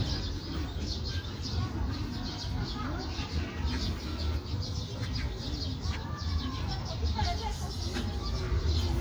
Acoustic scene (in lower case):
park